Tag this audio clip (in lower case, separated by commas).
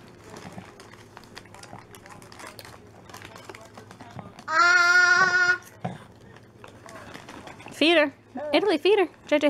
speech, inside a small room